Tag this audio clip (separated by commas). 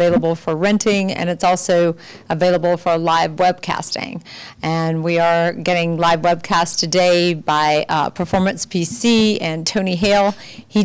inside a large room or hall, Speech